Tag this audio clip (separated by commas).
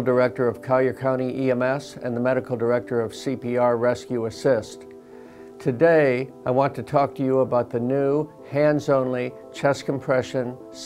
Speech, Music